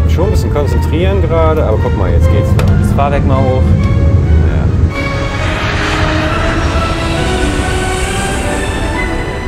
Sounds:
airplane

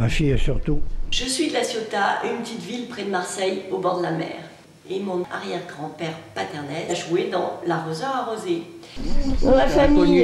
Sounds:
speech

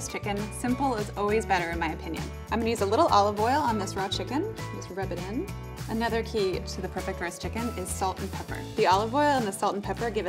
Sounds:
speech
music

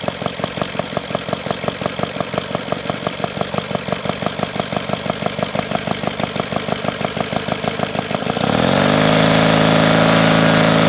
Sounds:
engine
medium engine (mid frequency)
idling
vroom

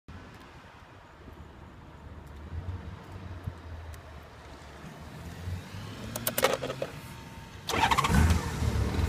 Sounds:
motorcycle
vehicle

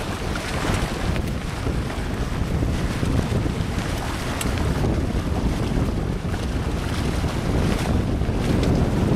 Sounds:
water vehicle
wind noise (microphone)
sailing
wind
sailboat

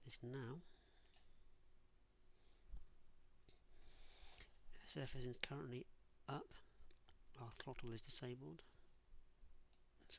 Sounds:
clicking
speech

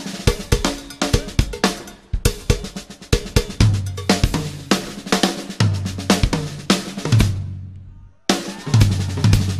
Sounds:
playing bass drum

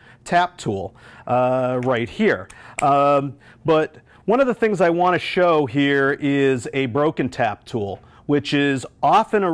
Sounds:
speech

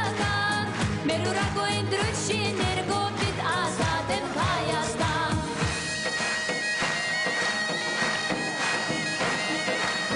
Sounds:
wind instrument

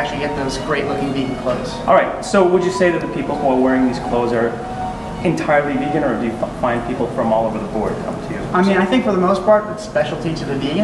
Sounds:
music
speech

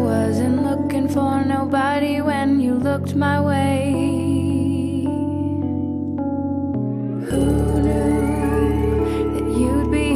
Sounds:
music

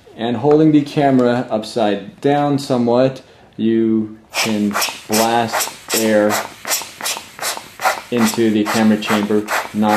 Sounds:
speech

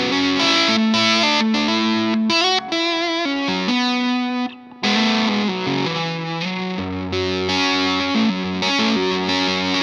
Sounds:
musical instrument
guitar
plucked string instrument
strum
electric guitar
music

